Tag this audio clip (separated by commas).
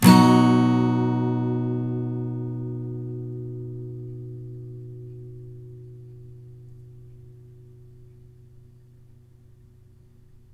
Music, Acoustic guitar, Musical instrument, Plucked string instrument, Guitar